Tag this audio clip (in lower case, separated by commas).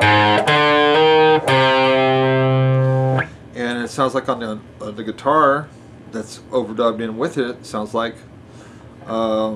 plucked string instrument, guitar, bass guitar, music, speech, bowed string instrument, musical instrument